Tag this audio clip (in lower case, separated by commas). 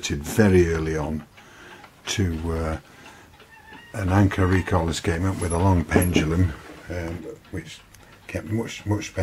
speech